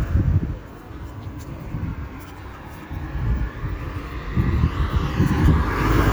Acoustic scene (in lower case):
street